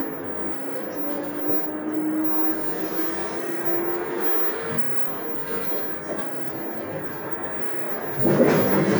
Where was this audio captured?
on a bus